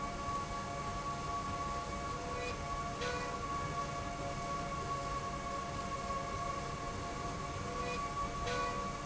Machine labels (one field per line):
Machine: slide rail